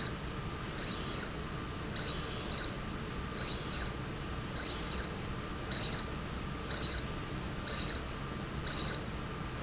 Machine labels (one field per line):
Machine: slide rail